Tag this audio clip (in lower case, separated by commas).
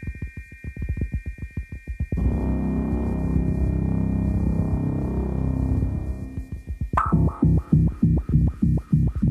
music, throbbing